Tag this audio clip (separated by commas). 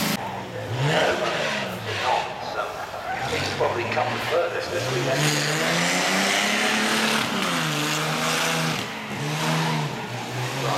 Car, Motor vehicle (road), Speech, Vehicle